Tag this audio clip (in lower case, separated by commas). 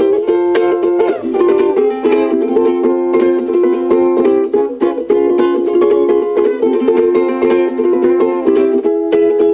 guitar, inside a small room, music, ukulele